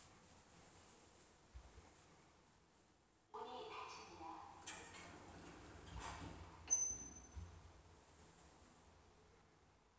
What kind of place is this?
elevator